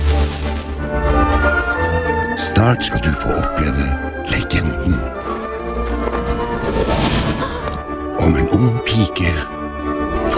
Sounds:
music, speech

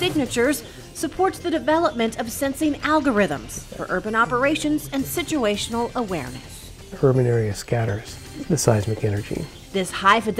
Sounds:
speech, music

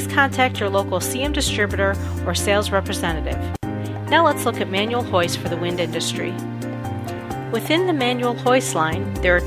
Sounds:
music, speech

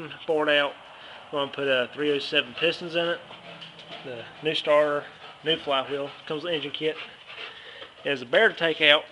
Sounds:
speech

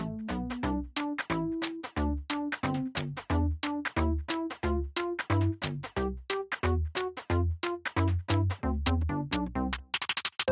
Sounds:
music, synthesizer

